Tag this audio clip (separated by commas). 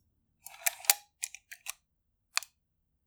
Mechanisms, Camera